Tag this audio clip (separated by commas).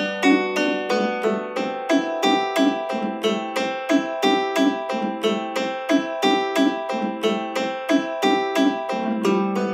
playing mandolin